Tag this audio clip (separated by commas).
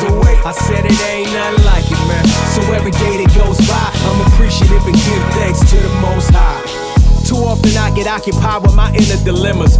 Music